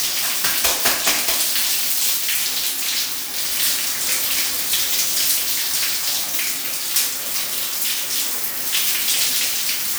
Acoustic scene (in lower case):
restroom